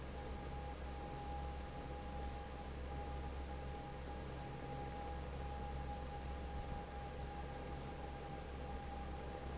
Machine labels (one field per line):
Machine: fan